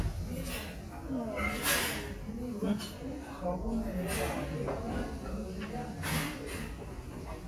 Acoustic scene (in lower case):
restaurant